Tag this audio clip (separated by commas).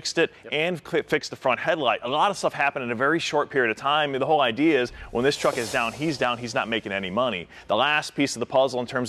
Speech